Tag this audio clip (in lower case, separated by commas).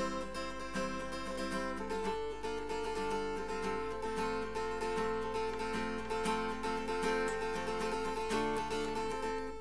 strum, guitar, musical instrument, plucked string instrument, acoustic guitar, music